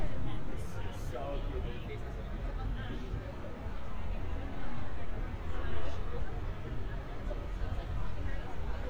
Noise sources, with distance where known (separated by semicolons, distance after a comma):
large-sounding engine; person or small group talking